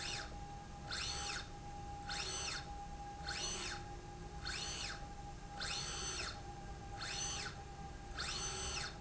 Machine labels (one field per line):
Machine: slide rail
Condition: normal